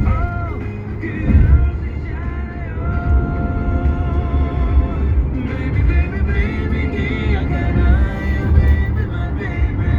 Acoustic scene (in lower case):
car